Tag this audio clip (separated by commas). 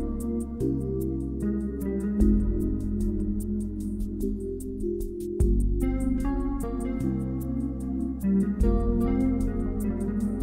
Music